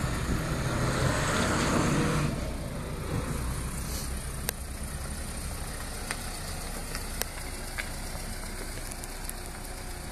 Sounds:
truck
car
vehicle

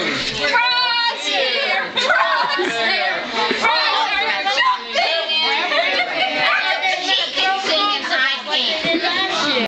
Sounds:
speech

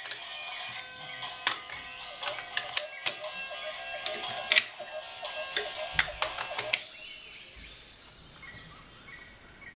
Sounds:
music

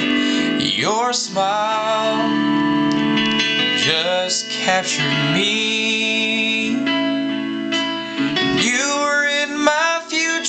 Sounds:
blues
music

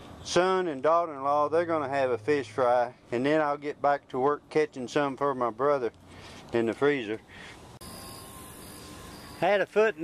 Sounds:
speech

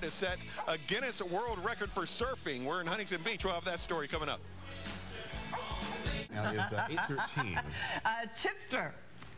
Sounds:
domestic animals
music
animal
speech
dog
bow-wow

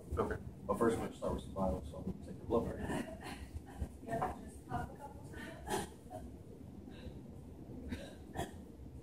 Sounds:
speech

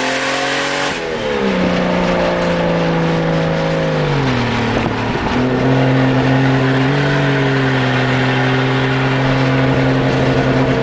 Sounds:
vehicle
car
outside, rural or natural

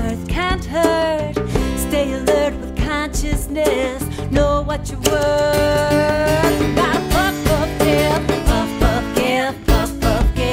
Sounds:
music

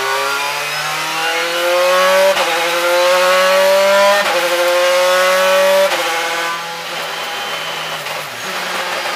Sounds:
vehicle
car
motor vehicle (road)

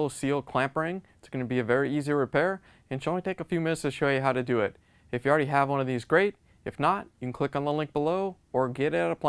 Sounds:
speech

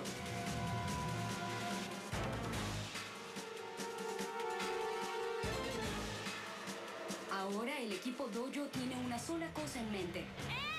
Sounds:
music
speech

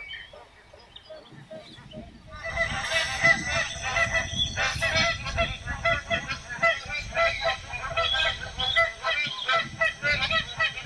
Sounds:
goose honking

